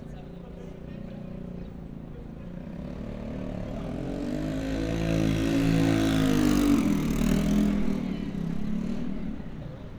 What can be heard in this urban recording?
medium-sounding engine